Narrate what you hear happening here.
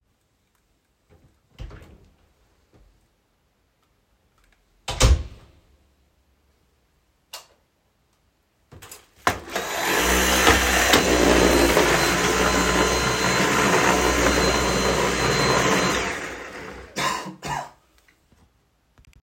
I opened the door and entered the hallway. I started vacuuming the floor. While vacuuming, I coughed.